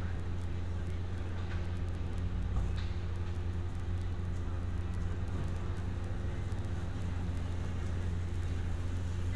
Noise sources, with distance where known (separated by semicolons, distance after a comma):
engine of unclear size, near